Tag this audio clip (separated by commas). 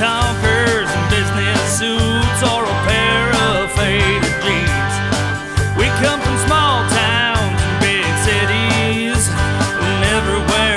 Exciting music, Music, Country